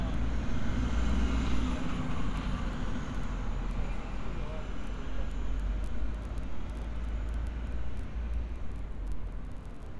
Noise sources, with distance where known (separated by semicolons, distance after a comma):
large-sounding engine, near; person or small group talking